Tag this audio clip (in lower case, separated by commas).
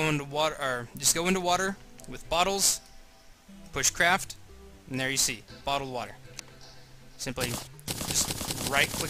speech